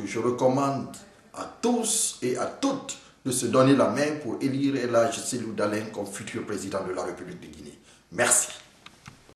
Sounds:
Speech

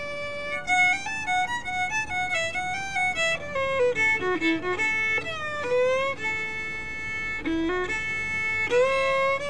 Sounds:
Bluegrass, fiddle, Musical instrument, Music

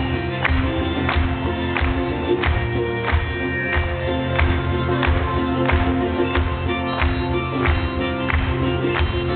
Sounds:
Rhythm and blues, Music

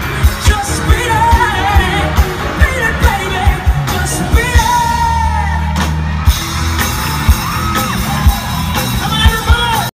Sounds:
Speech, Music

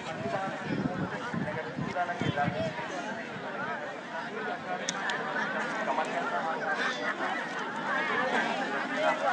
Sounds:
Speech

